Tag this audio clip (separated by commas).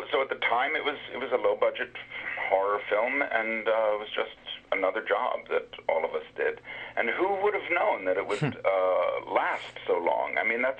Radio